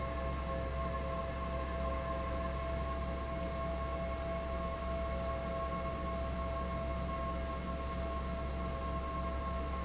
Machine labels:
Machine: fan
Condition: abnormal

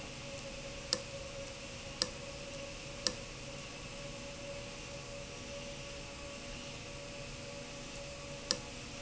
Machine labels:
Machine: valve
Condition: abnormal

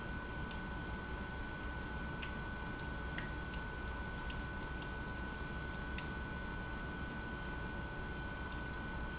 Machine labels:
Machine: pump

